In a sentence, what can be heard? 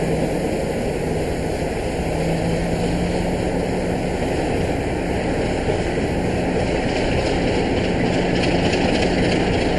Engine running continuously